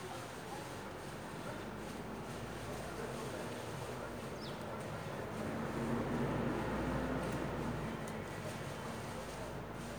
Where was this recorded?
in a residential area